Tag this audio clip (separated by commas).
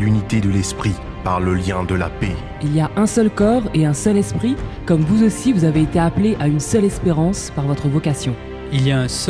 Music, Speech